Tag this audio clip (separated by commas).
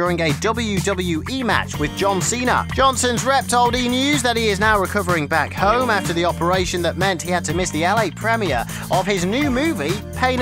Music, Speech